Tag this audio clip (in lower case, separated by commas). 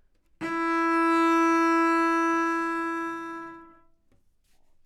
music, musical instrument, bowed string instrument